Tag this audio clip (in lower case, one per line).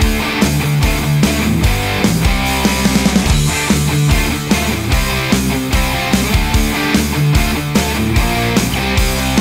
guitar
electric guitar
musical instrument
music